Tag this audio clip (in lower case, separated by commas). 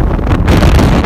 wind